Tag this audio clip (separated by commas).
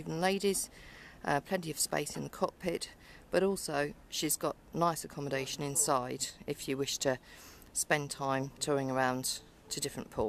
Speech